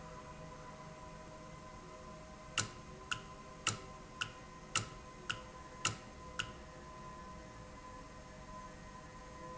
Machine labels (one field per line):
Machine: valve